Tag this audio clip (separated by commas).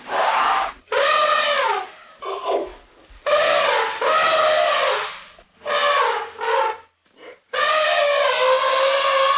elephant trumpeting